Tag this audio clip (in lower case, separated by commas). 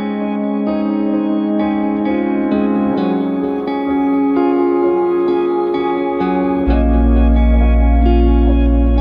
music, effects unit